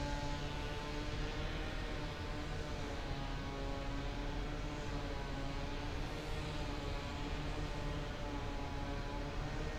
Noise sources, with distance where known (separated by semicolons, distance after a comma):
chainsaw, far